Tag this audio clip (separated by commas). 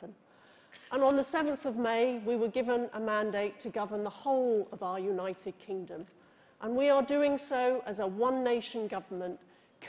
Female speech, Speech